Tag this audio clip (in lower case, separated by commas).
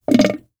water, gurgling